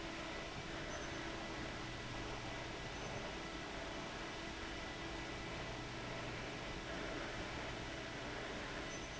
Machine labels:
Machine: fan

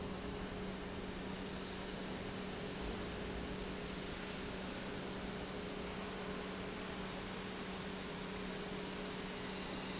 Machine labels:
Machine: pump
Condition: normal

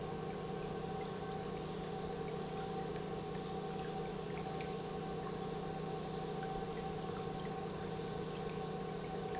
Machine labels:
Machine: pump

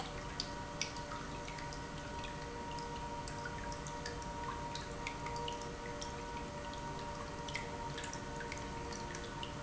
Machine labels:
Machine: pump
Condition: normal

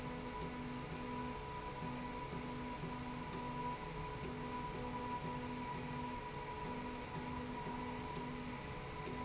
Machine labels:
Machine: slide rail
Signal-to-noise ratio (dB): 0 dB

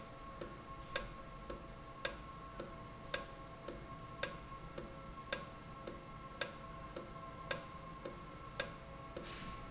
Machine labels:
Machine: valve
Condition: normal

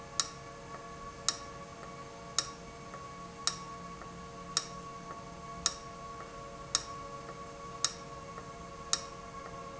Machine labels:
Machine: valve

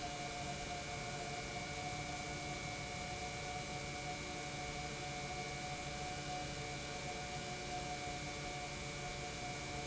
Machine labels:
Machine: pump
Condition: normal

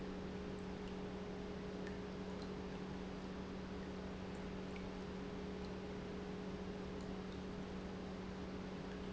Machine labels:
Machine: pump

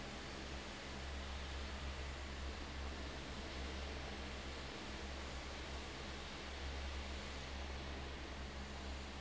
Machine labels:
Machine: fan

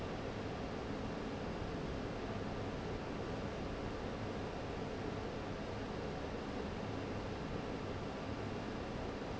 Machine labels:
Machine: fan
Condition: abnormal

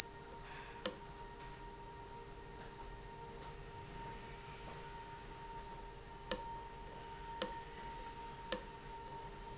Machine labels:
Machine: valve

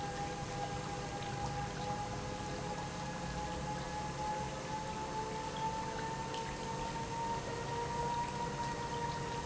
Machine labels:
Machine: pump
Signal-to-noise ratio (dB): -6 dB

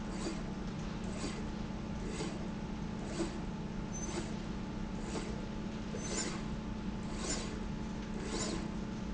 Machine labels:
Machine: slide rail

